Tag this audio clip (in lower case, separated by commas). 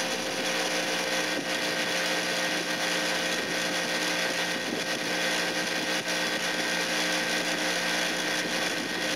inside a small room